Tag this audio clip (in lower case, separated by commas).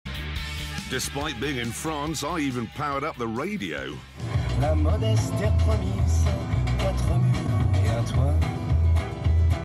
speech, radio, music